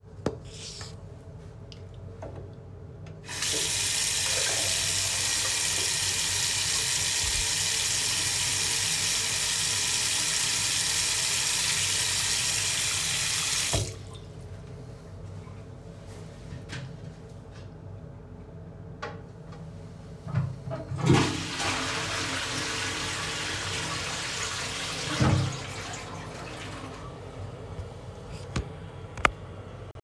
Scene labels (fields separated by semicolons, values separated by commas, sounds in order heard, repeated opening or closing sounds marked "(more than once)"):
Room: bedroom; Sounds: running water, toilet flushing